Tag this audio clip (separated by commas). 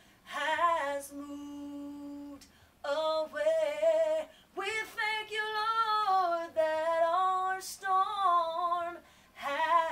inside a small room